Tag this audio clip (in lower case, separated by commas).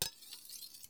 domestic sounds, silverware